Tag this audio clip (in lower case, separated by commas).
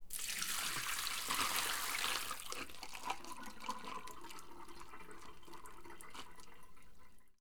home sounds, liquid, sink (filling or washing)